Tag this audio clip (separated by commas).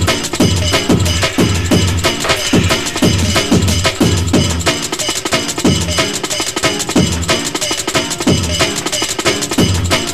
Music, Sound effect